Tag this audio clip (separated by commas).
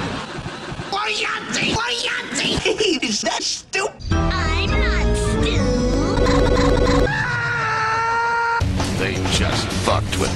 Music, inside a small room, Speech